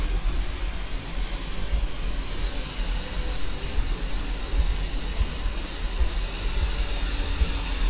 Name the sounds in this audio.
engine of unclear size